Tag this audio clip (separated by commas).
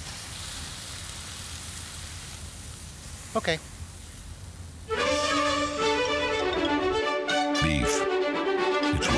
Music, Speech